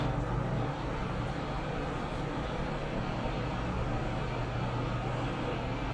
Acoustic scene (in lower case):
elevator